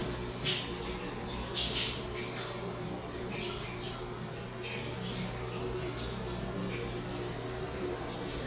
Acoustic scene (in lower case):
restroom